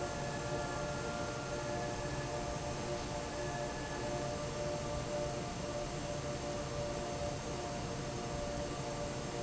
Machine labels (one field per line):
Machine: fan